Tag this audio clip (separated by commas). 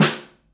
Snare drum, Drum, Percussion, Musical instrument, Music